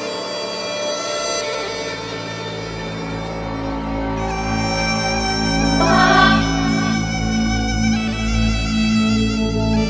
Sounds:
tender music, music

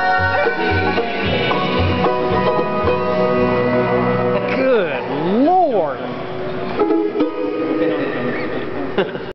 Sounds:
music

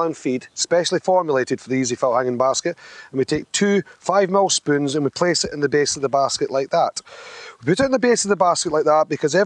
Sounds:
speech

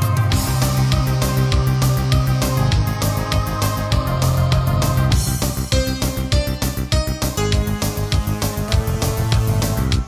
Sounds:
music

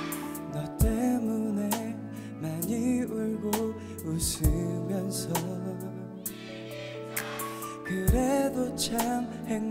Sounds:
music

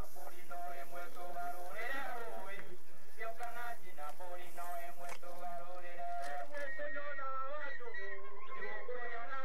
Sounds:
gurgling, speech

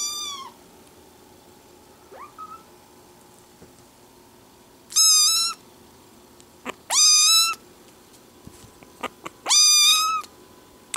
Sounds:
cat meowing

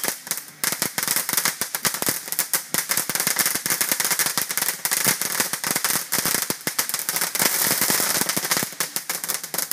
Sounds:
explosion, fireworks

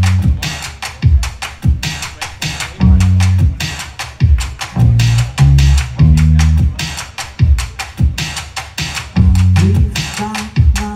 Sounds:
music, speech

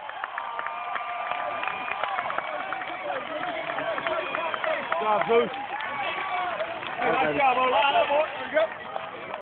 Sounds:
speech

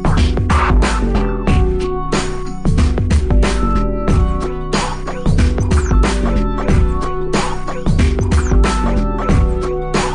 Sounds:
music

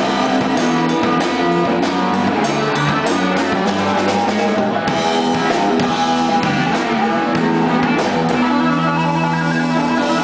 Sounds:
musical instrument, guitar, plucked string instrument, music

